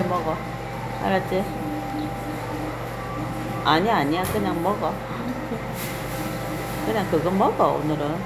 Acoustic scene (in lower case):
crowded indoor space